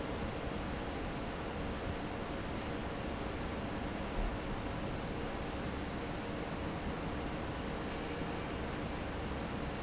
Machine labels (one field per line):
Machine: fan